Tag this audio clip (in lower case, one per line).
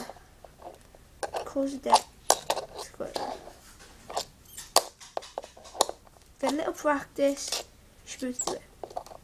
speech